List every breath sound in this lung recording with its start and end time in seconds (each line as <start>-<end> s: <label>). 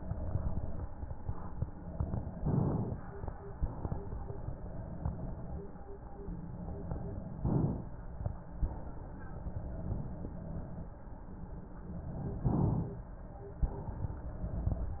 2.38-3.46 s: inhalation
3.46-4.54 s: exhalation
7.42-8.51 s: inhalation
8.51-9.60 s: exhalation
12.48-13.64 s: inhalation
13.64-14.74 s: exhalation